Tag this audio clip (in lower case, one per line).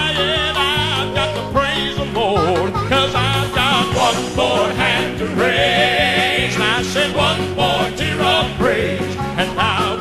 music